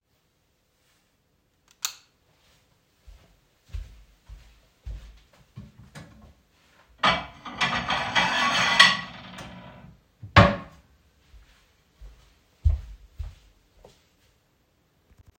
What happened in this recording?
In the kitchen I turned on the lights, then went to open the drawer to get the dishes.